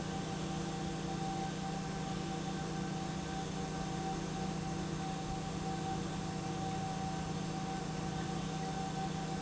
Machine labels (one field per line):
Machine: pump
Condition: normal